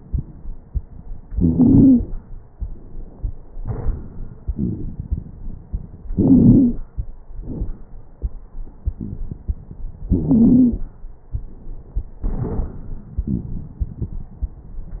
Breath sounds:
1.31-2.00 s: wheeze
4.51-4.88 s: wheeze
6.09-6.82 s: inhalation
6.09-6.82 s: wheeze
7.39-7.80 s: exhalation
7.39-7.80 s: crackles
10.06-10.82 s: wheeze
13.17-13.80 s: wheeze

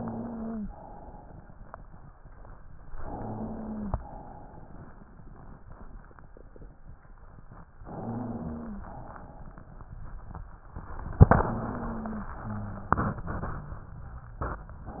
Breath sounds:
0.00-0.63 s: wheeze
0.68-1.66 s: exhalation
3.04-3.93 s: inhalation
3.04-3.93 s: wheeze
4.00-4.98 s: exhalation
7.99-8.88 s: inhalation
7.99-8.88 s: wheeze
8.94-9.71 s: exhalation
11.48-12.37 s: inhalation
11.48-12.37 s: wheeze
12.41-15.00 s: exhalation
12.41-15.00 s: wheeze

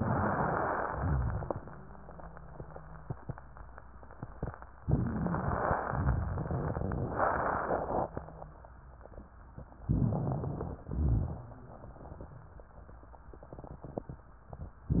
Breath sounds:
9.88-10.81 s: inhalation
9.88-10.81 s: crackles
10.87-11.41 s: exhalation
10.87-11.41 s: crackles
14.85-15.00 s: inhalation
14.85-15.00 s: crackles

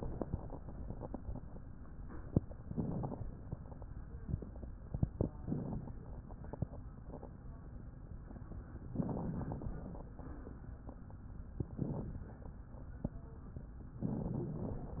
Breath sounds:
2.64-3.21 s: inhalation
2.64-3.21 s: crackles
5.45-6.02 s: inhalation
5.45-6.02 s: crackles
8.88-9.69 s: inhalation
8.88-9.69 s: crackles
9.73-10.60 s: exhalation
9.73-10.60 s: crackles
11.63-12.22 s: inhalation
11.63-12.22 s: crackles

